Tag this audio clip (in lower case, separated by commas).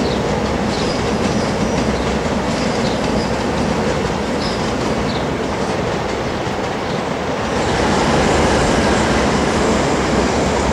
rail transport, metro, train wagon, train, clickety-clack